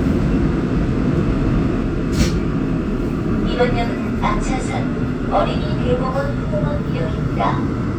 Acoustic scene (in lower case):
subway train